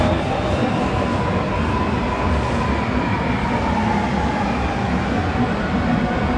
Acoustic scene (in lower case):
subway station